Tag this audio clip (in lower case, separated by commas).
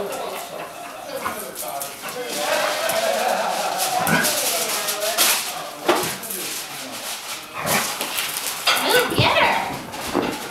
animal, dog, inside a small room, speech, domestic animals